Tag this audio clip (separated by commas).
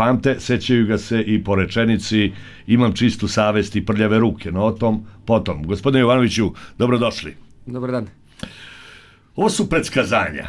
Speech